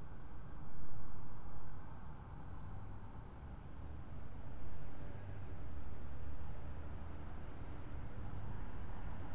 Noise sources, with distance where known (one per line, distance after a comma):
background noise